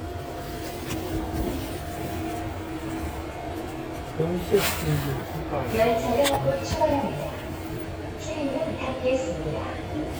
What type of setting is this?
subway train